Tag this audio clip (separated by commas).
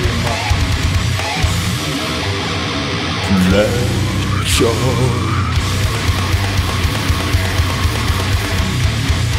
Music